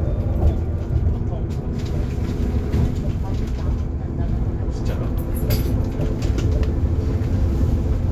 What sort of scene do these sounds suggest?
bus